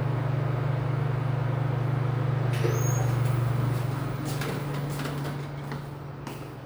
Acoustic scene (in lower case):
elevator